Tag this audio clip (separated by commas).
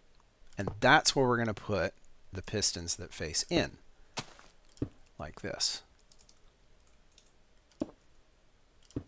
Speech